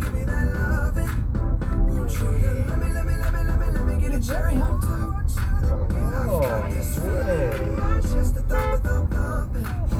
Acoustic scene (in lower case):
car